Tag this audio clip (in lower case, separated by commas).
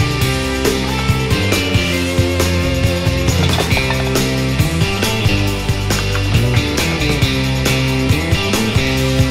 ping, music